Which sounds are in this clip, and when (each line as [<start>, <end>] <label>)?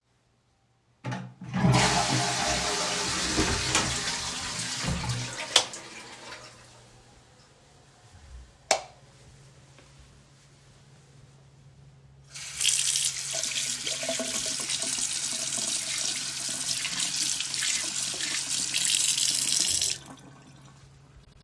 [1.05, 6.49] toilet flushing
[3.36, 4.26] door
[5.49, 5.66] light switch
[8.47, 9.13] light switch
[12.34, 20.22] running water